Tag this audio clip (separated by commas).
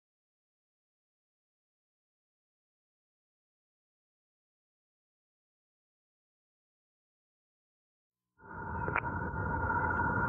Busy signal